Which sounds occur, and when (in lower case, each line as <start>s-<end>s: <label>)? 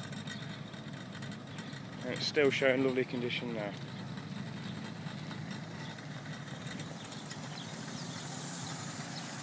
0.0s-9.4s: medium engine (mid frequency)
1.6s-1.9s: bird song
2.0s-3.7s: male speech
5.6s-6.0s: bird song
6.6s-8.2s: bird song
8.5s-8.8s: bird song
9.0s-9.2s: bird song